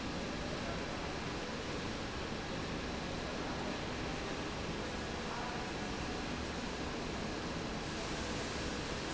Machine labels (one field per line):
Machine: slide rail